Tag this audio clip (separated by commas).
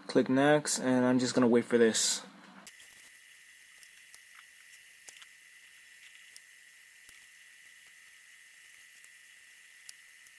Speech